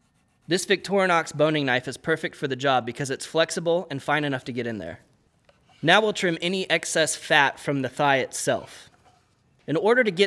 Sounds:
speech

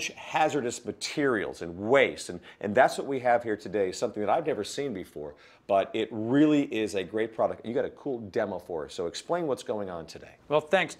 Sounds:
speech

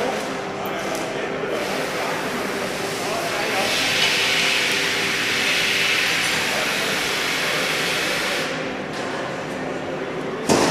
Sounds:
speech

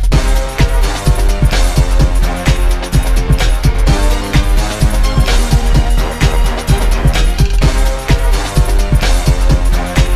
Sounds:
rhythm and blues
music

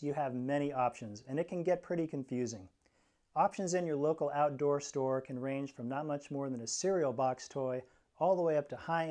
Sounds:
speech

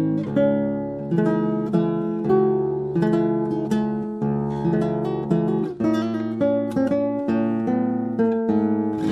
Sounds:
guitar
musical instrument
music

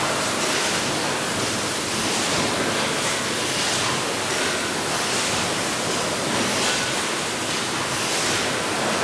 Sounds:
slosh

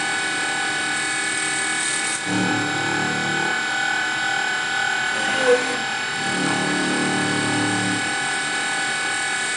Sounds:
drill

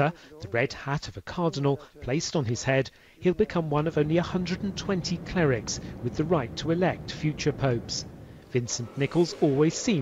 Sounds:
speech

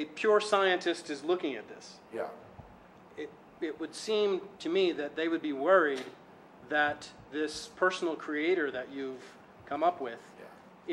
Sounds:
speech

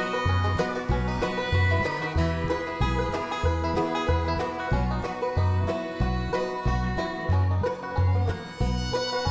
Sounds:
playing banjo

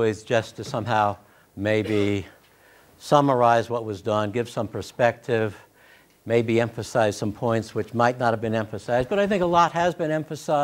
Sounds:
speech

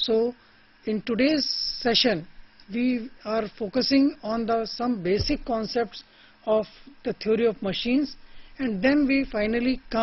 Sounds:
narration
speech

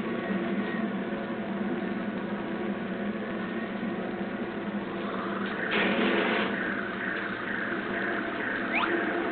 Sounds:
music

